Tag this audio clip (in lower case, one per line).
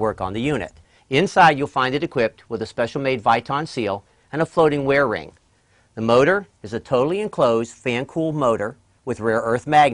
speech